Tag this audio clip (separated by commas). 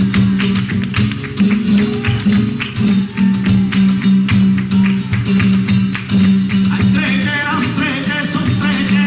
Music of Latin America, Acoustic guitar, Flamenco, Singing, Guitar, Music